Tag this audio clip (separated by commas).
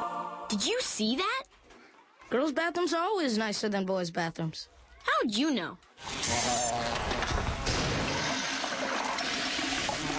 Toilet flush, Water